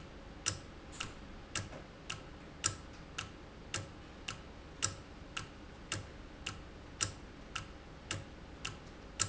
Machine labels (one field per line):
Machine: valve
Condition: normal